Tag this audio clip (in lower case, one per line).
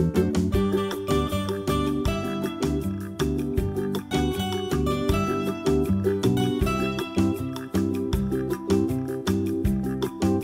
music